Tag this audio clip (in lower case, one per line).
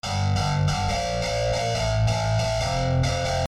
guitar
plucked string instrument
musical instrument
music